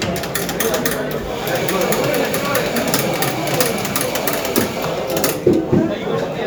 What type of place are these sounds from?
cafe